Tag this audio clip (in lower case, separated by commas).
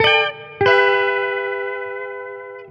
plucked string instrument, guitar, music, electric guitar, musical instrument